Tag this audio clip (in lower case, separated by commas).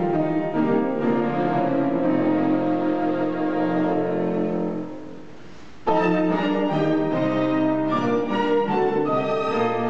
musical instrument, cello, fiddle, playing cello, music